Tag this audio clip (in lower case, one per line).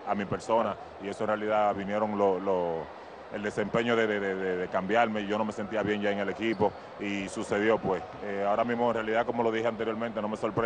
speech